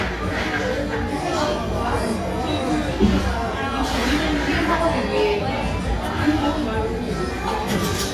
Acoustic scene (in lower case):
cafe